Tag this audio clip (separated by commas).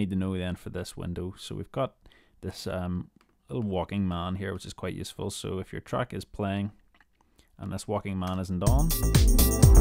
Dance music, Music, Speech